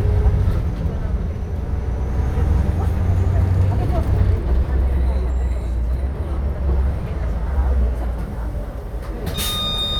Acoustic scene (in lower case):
bus